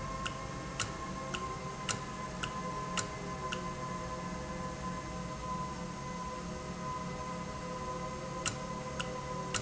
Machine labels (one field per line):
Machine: valve